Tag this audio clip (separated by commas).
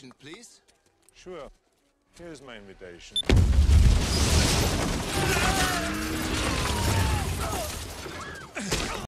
Speech, Explosion